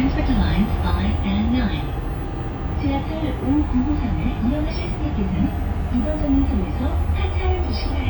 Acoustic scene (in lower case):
bus